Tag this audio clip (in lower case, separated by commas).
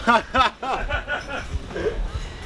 laughter, human voice